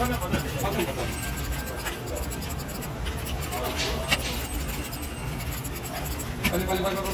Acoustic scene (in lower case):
crowded indoor space